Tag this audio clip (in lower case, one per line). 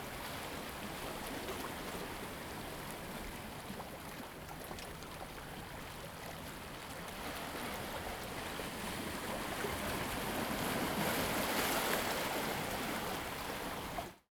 ocean
water
surf